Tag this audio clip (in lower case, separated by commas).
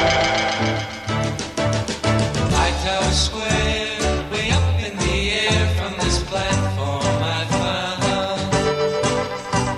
jingle (music), music